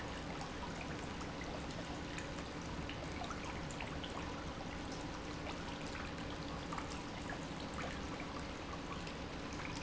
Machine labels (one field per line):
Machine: pump